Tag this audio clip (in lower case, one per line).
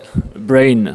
speech
human voice